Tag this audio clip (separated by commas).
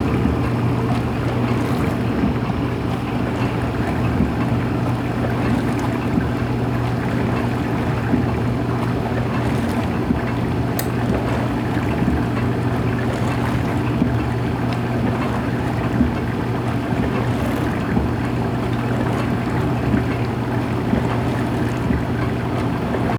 Engine